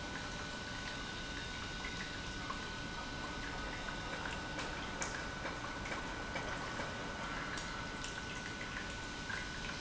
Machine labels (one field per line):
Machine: pump